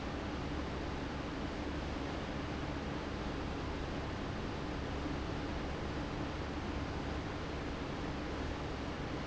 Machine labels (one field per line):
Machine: fan